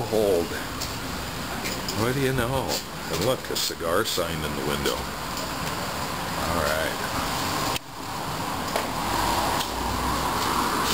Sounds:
outside, urban or man-made
speech

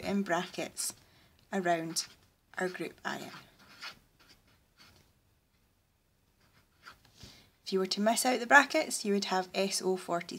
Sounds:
speech
writing

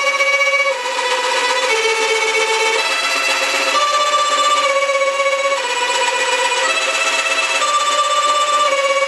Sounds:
music
fiddle

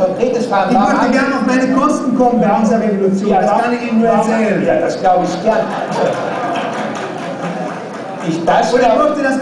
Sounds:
inside a large room or hall
speech

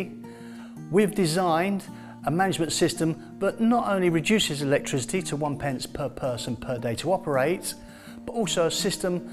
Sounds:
music
speech

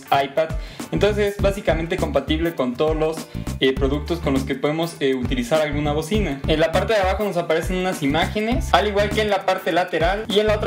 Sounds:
music
speech

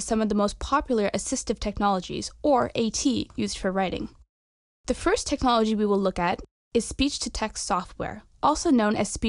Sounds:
speech

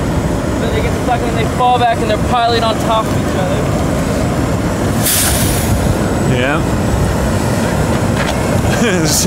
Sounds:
speech

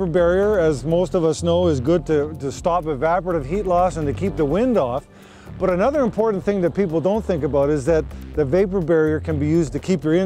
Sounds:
music
speech

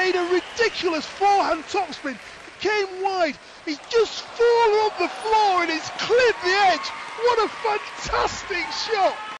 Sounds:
speech

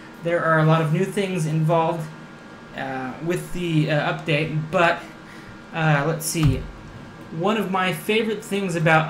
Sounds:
speech

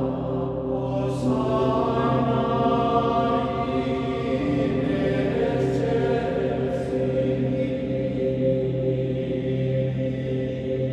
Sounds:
music

